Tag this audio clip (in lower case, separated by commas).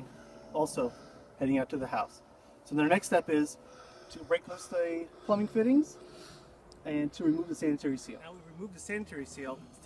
speech